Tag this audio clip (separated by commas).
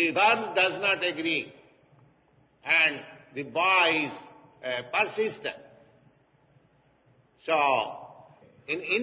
Speech